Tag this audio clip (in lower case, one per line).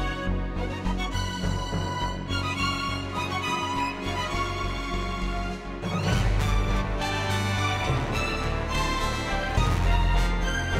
music